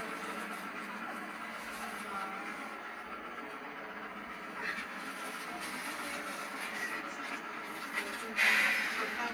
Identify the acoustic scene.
bus